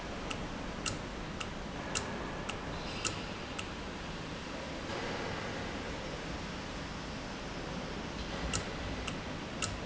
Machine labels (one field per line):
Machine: valve